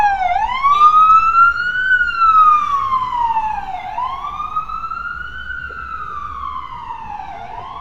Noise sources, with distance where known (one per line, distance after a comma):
siren, near
person or small group talking, far